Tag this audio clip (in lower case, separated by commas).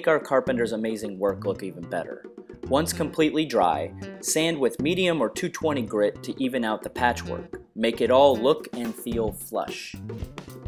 music, speech